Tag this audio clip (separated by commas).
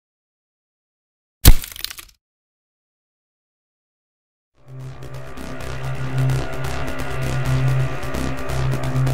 Music, Crack